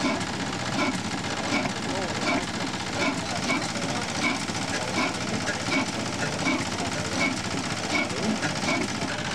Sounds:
idling
speech
engine

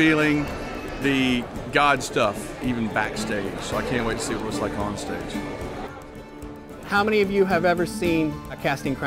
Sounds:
music
speech

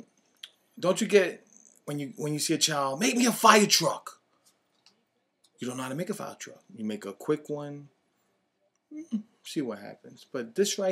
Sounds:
speech

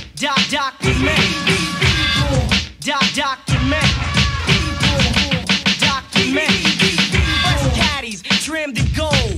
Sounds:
scratching (performance technique)

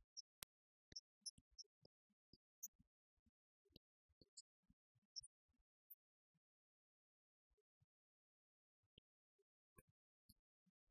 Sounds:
speech
music
percussion

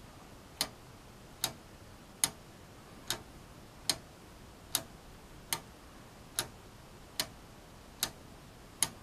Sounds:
tick-tock
tick

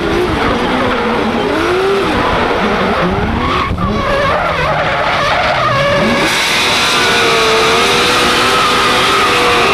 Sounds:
car
vehicle

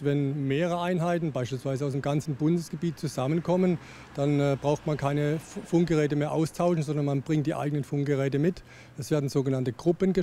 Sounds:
speech

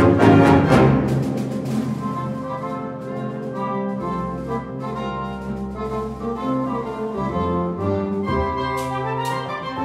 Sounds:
music

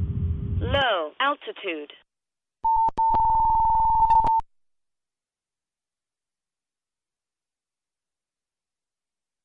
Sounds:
speech

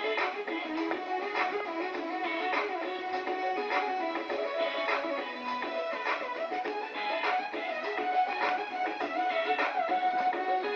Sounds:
music

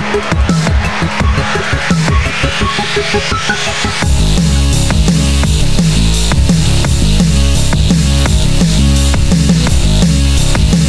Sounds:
dubstep
music
electronic music

